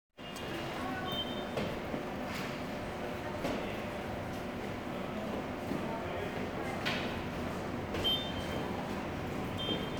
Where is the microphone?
in a subway station